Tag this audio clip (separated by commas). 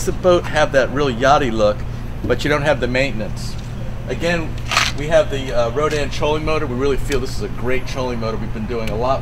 Speech